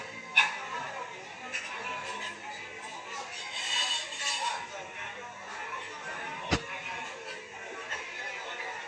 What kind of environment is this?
restaurant